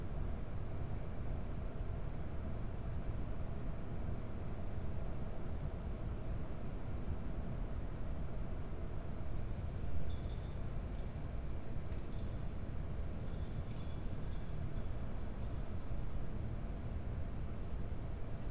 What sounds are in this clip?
background noise